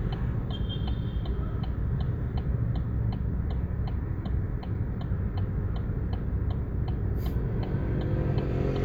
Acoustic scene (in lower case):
car